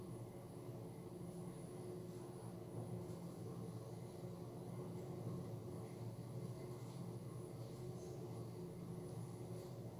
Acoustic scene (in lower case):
elevator